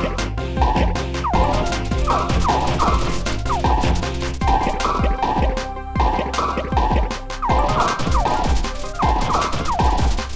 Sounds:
music

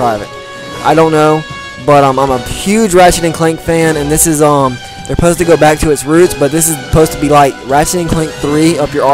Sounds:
music, speech

